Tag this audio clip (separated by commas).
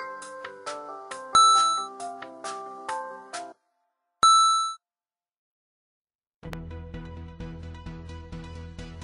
tinkle